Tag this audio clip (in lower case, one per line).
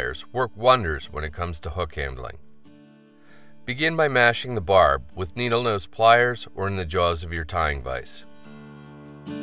speech
music